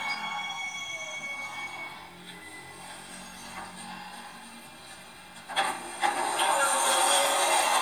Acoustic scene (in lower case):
subway train